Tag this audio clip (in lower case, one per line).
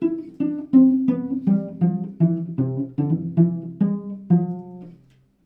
music
musical instrument
bowed string instrument